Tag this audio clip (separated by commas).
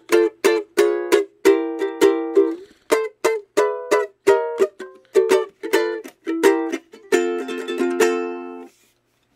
Music